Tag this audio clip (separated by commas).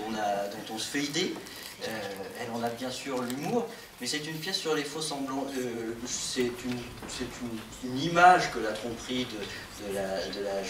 Speech